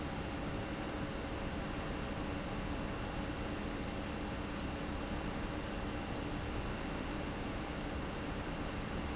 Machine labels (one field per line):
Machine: fan